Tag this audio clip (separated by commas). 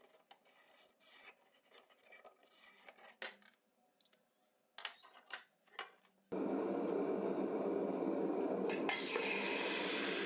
forging swords